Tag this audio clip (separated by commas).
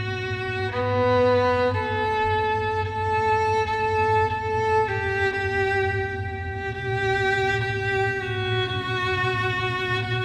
Music, Bowed string instrument